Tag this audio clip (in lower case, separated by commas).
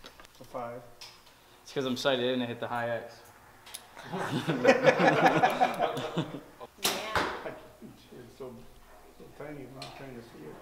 speech, inside a small room